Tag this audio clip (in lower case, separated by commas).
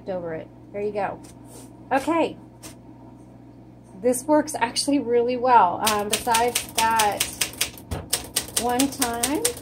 typing on typewriter